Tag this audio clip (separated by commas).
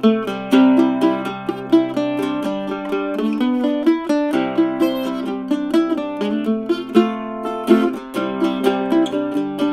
Country, Plucked string instrument, Mandolin, Bluegrass, Music, Musical instrument